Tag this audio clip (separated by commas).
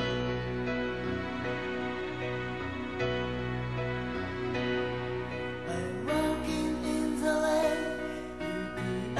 Music